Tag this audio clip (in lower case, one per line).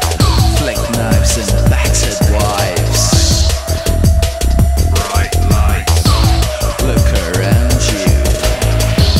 music
speech